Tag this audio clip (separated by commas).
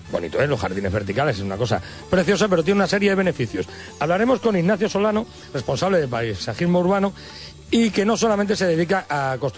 Speech, Music